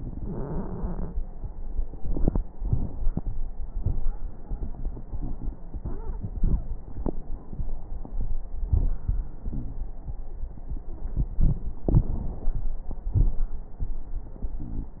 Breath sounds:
Wheeze: 9.45-9.89 s

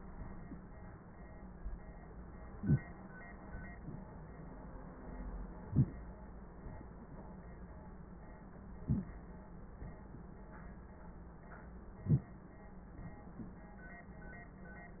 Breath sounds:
Inhalation: 2.60-2.83 s, 5.66-5.98 s, 8.82-9.11 s, 12.05-12.33 s

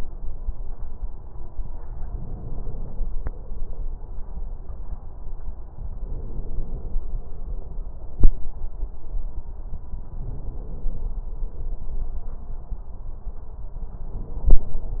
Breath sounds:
Inhalation: 2.11-3.12 s, 6.01-7.01 s, 10.23-11.23 s, 14.02-15.00 s

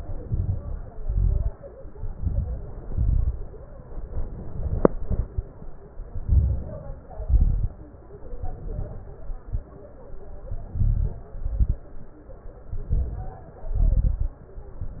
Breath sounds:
Inhalation: 0.00-0.87 s, 1.77-2.71 s, 3.91-4.92 s, 6.14-6.99 s, 8.34-9.18 s, 10.51-11.29 s, 12.71-13.49 s
Exhalation: 0.89-1.57 s, 2.79-3.55 s, 4.94-5.47 s, 7.14-7.75 s, 9.25-9.75 s, 11.33-11.86 s, 13.64-14.42 s
Crackles: 0.00-0.87 s, 0.89-1.57 s, 1.77-2.71 s, 2.79-3.55 s, 4.94-5.47 s, 6.14-6.99 s, 7.14-7.75 s, 8.34-9.18 s, 9.25-9.75 s, 10.51-11.29 s, 11.33-11.86 s, 12.71-13.49 s, 13.64-14.42 s

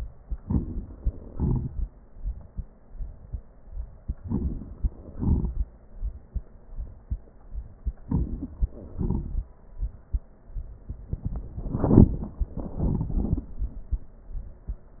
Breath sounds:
Inhalation: 0.36-0.61 s, 4.20-4.69 s, 8.05-8.55 s
Exhalation: 1.35-1.84 s, 5.14-5.68 s, 9.00-9.50 s

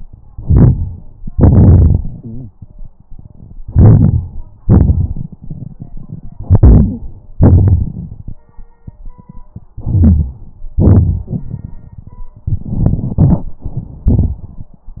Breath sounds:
Inhalation: 0.26-1.13 s, 3.66-4.61 s, 6.43-7.40 s, 9.73-10.72 s, 12.43-13.61 s
Exhalation: 1.23-2.51 s, 4.63-6.36 s, 7.38-8.37 s, 10.72-12.35 s
Wheeze: 2.24-2.55 s, 6.77-7.01 s, 11.24-11.38 s
Rhonchi: 0.26-1.09 s, 3.68-4.62 s, 4.67-5.30 s, 7.44-8.39 s, 9.71-10.67 s

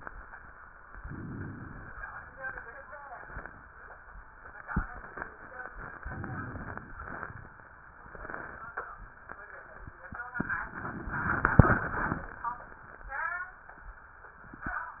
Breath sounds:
Inhalation: 0.91-1.95 s, 5.98-6.93 s
Exhalation: 6.95-7.71 s
Rhonchi: 0.91-1.95 s
Crackles: 5.98-6.93 s, 6.95-7.71 s

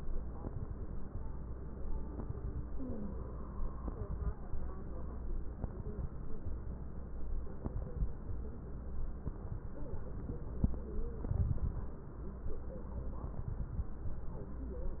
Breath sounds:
Inhalation: 11.31-11.93 s
Crackles: 11.31-11.93 s

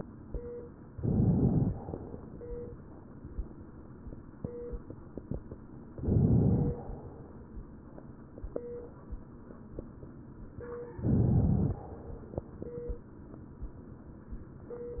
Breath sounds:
Inhalation: 0.93-1.67 s, 6.02-6.75 s, 11.01-11.81 s
Exhalation: 1.70-2.83 s, 6.76-7.57 s, 11.81-13.05 s

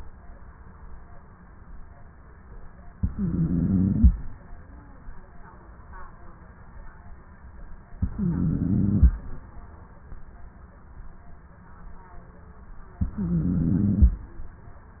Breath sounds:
Inhalation: 2.94-4.16 s, 7.96-9.18 s, 13.04-14.25 s
Stridor: 2.94-4.16 s, 7.96-9.18 s, 13.04-14.25 s

